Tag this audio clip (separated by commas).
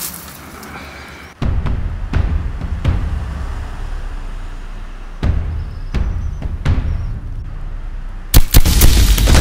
Music, outside, rural or natural